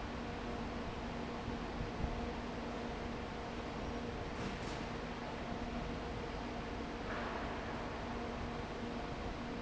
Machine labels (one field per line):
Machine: fan